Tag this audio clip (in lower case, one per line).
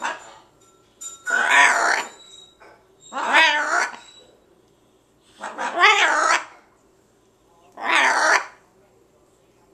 bird